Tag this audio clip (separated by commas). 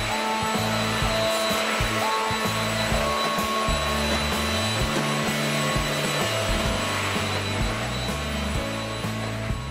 vacuum cleaner cleaning floors